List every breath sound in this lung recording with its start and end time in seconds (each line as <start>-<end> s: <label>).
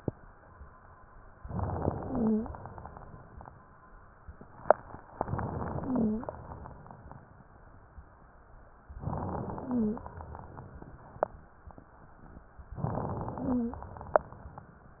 1.42-2.03 s: crackles
1.44-2.49 s: inhalation
2.01-2.49 s: wheeze
5.20-6.28 s: inhalation
5.20-5.82 s: crackles
5.80-6.28 s: wheeze
9.03-9.60 s: crackles
9.06-10.08 s: inhalation
9.62-10.08 s: wheeze
12.79-13.36 s: crackles
12.80-13.84 s: inhalation
13.36-13.84 s: wheeze